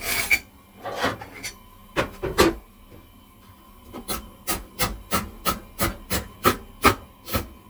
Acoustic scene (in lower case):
kitchen